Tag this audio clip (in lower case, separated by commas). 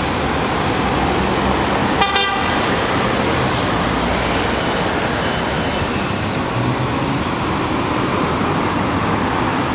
car, roadway noise, motor vehicle (road), vehicle